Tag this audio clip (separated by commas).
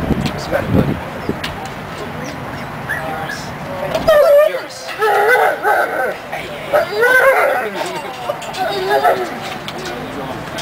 pets, Speech, Animal, Dog